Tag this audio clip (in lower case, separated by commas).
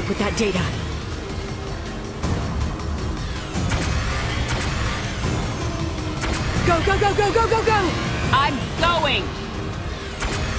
speech, music